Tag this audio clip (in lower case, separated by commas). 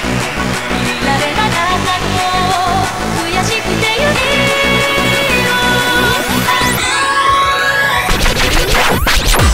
music, techno, dance music